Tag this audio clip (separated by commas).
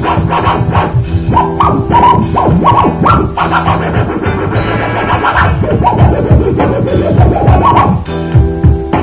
disc scratching